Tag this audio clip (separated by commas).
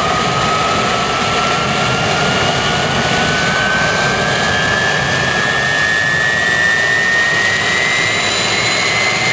Jet engine